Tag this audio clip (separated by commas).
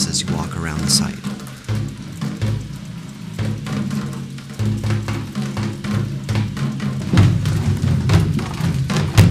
Drum, Speech, Musical instrument, Bass drum, Music